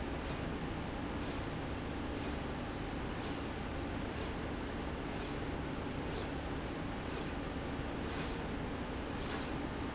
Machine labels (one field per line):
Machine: slide rail